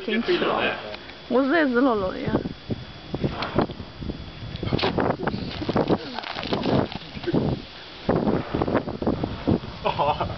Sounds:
Speech

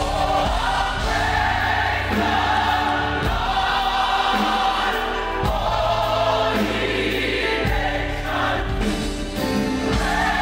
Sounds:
Music, Choir

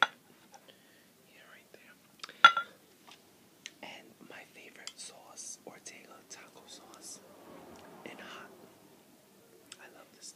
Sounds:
Whispering, people whispering, Speech

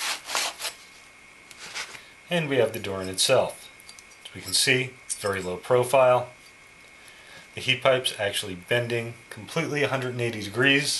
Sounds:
Speech, inside a small room

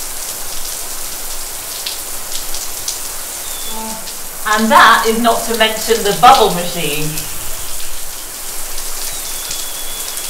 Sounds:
Rain, Rain on surface, Raindrop

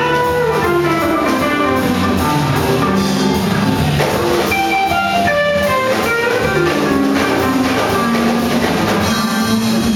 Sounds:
Hammond organ, Tambourine, Organ, Music

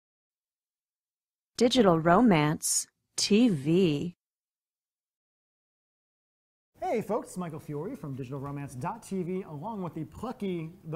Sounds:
Speech

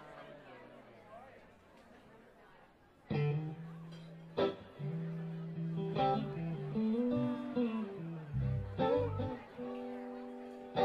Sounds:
Speech, Music

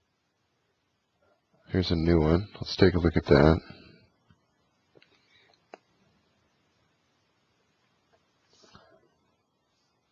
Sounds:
Speech

